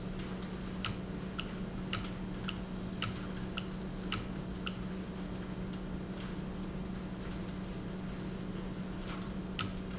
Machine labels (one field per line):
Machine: valve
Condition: normal